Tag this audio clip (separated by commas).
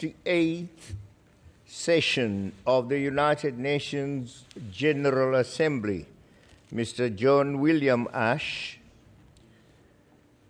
Male speech, Speech